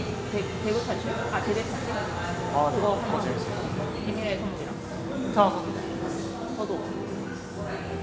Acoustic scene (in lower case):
cafe